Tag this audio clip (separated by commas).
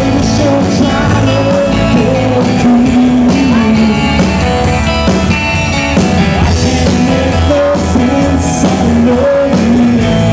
Male singing, Music